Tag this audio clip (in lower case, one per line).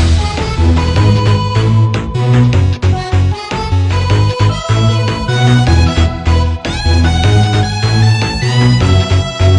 video game music